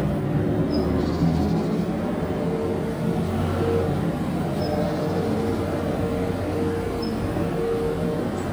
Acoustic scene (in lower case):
residential area